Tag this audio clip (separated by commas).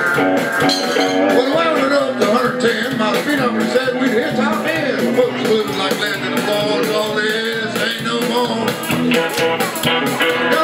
Music, Male singing